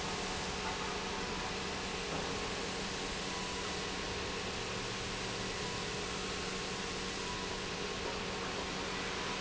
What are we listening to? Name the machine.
pump